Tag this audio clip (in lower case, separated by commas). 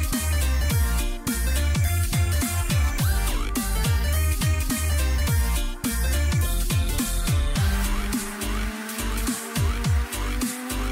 music